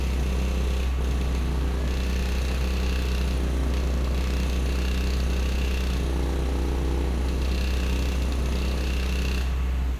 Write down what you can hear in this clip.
unidentified impact machinery